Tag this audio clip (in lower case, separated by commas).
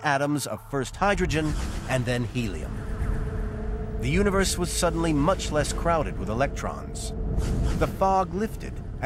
speech, music